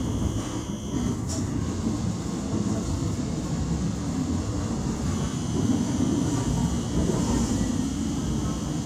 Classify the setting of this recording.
subway train